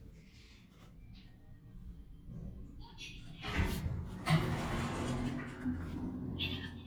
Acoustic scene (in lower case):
elevator